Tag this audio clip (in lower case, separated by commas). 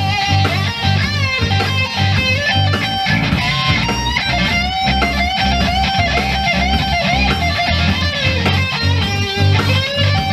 plucked string instrument, guitar, music, electric guitar, musical instrument